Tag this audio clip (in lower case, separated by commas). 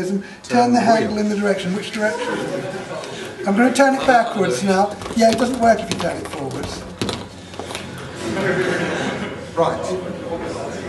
speech